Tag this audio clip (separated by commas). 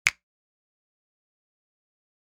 Finger snapping, Hands